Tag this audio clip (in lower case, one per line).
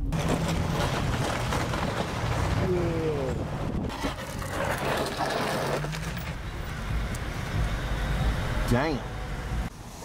roadway noise
speech
outside, urban or man-made